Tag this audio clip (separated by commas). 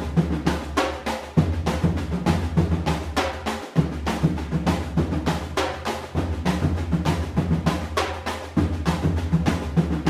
Musical instrument, Music, Drum, Bass drum